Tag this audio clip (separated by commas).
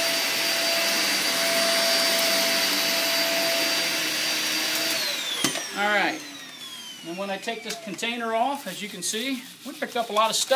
Vacuum cleaner, Speech